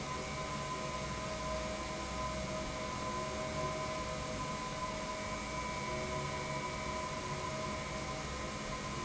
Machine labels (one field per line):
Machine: pump